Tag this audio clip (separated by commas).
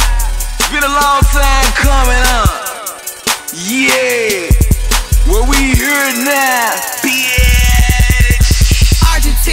Soul music, Happy music, Bass drum, Musical instrument, Music, Drum, Drum kit